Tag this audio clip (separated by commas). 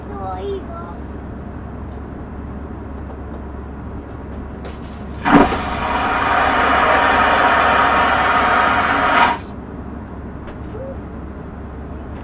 home sounds, Toilet flush